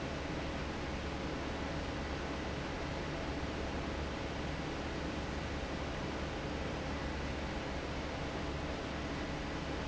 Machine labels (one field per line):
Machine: fan